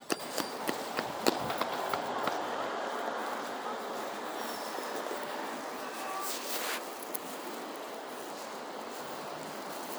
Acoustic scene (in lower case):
residential area